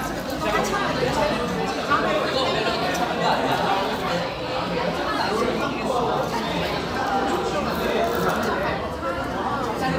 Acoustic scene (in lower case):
crowded indoor space